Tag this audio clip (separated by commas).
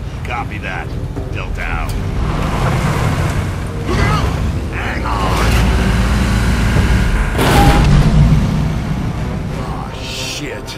Music, Speech